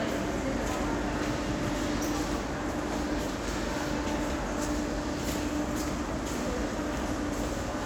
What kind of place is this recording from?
subway station